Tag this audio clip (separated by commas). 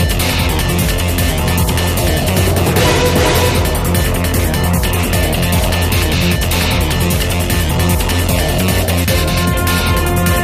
Music